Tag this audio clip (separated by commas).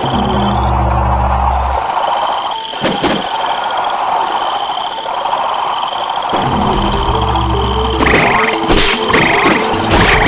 Frog, Music